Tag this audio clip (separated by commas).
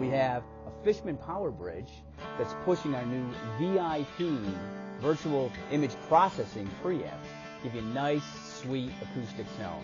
Music, Speech, Electric guitar, Musical instrument, Plucked string instrument, Strum, Guitar